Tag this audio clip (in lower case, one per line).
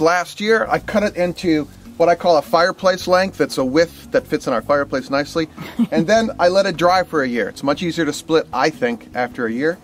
speech